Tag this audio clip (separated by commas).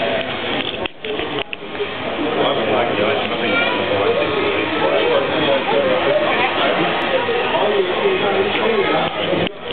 Speech, Vehicle